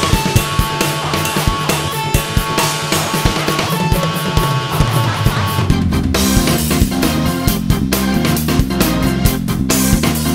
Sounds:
music

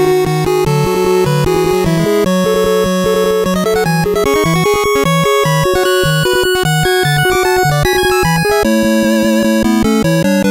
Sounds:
video game music, music

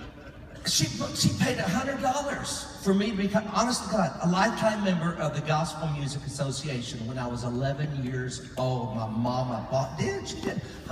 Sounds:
narration, speech, male speech

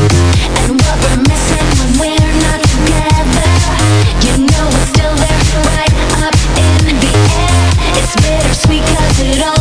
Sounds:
music

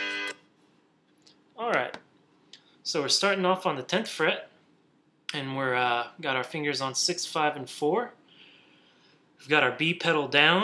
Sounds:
musical instrument, guitar, speech, strum, music

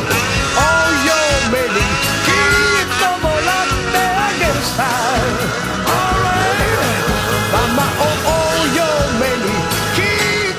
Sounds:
driving snowmobile

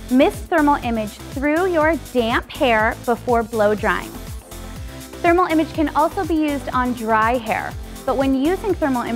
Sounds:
speech, music

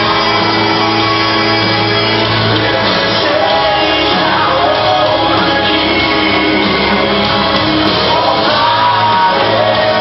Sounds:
music, inside a large room or hall, singing

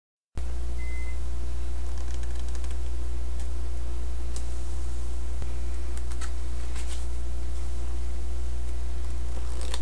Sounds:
shuffling cards

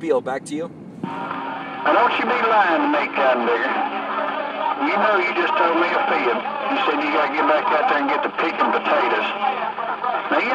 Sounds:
speech, radio

